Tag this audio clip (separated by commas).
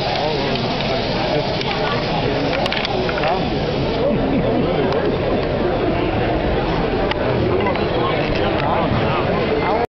Speech